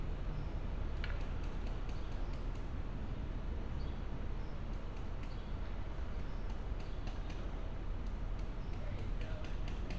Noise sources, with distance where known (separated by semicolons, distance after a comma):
non-machinery impact, far